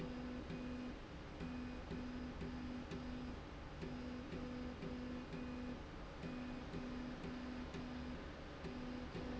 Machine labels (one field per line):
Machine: slide rail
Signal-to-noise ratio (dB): 6 dB